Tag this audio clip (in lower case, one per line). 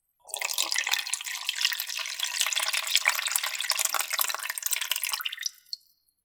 liquid